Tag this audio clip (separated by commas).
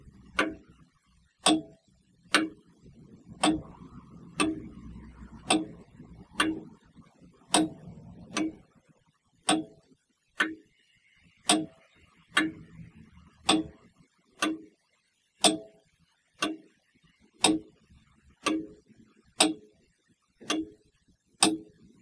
Mechanisms, Clock